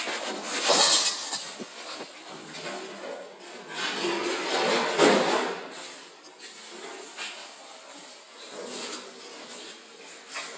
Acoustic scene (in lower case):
kitchen